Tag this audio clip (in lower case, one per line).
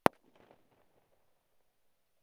fireworks
explosion